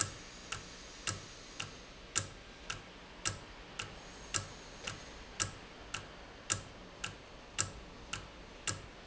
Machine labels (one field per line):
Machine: valve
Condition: normal